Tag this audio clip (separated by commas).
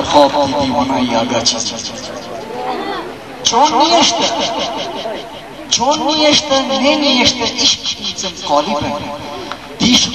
Speech